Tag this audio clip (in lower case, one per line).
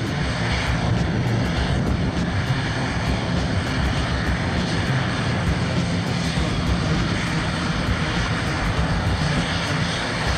vehicle
airplane
outside, urban or man-made
music